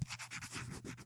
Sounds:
Writing, home sounds

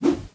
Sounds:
Whoosh

